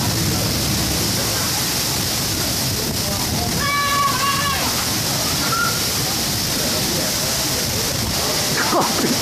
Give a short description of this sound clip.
Heavy rain is falling and a child yells and a person is speaking